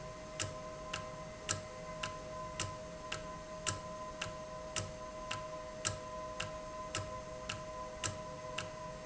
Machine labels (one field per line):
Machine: valve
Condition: normal